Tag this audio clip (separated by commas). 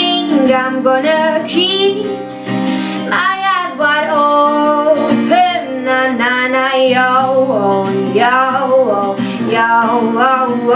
Music